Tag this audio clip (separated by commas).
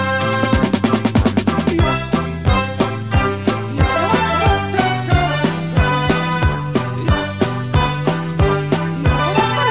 Music